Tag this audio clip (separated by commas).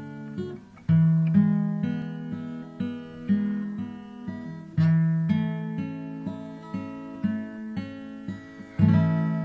Plucked string instrument, Strum, Guitar, Musical instrument, Music